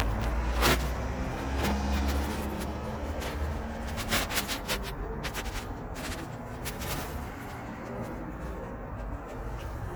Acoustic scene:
residential area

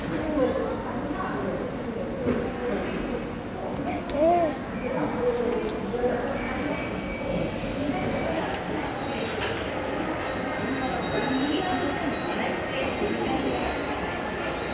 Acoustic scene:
subway station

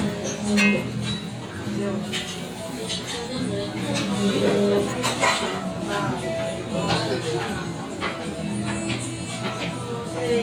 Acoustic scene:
restaurant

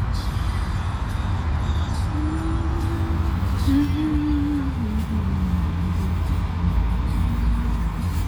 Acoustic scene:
car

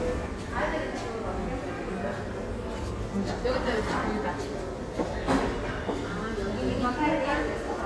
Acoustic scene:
crowded indoor space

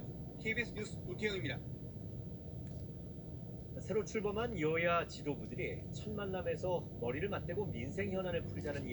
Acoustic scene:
car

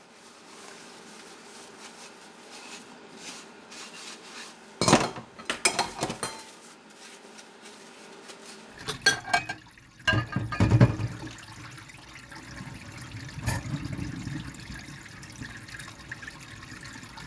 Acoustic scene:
kitchen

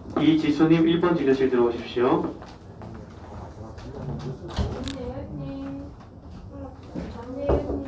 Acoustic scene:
crowded indoor space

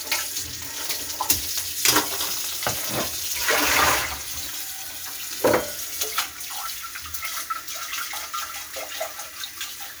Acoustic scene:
kitchen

